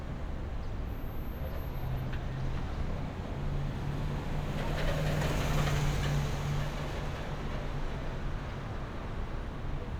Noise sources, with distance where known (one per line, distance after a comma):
large-sounding engine